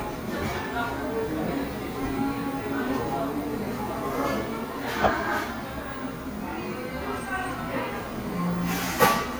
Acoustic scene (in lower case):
crowded indoor space